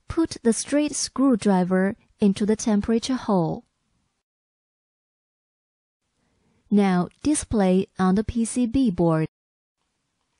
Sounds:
speech

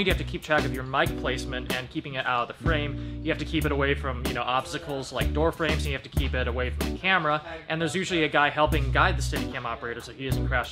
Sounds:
speech, music

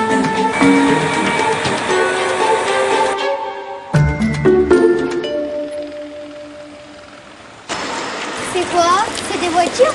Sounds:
speech, music

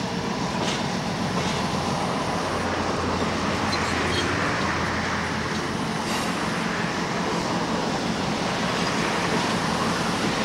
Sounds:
vehicle, rail transport, train

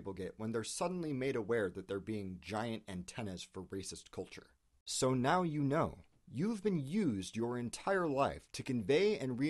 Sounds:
speech

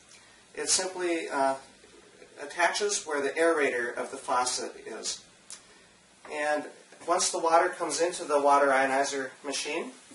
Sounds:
speech

